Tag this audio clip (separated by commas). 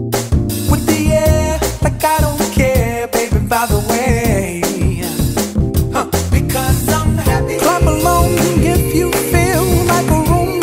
Hip hop music, Music of Africa, Pop music, Music